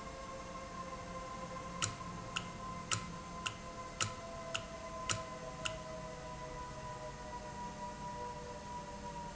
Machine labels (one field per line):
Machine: valve